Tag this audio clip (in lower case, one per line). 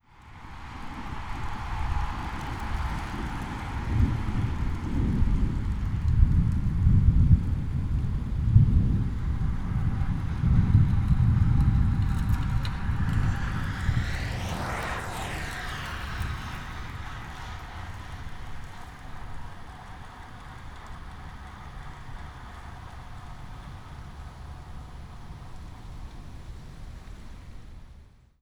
vehicle
thunder
thunderstorm
bicycle